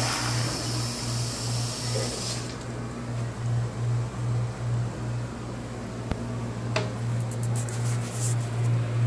Water flows, humming in the distance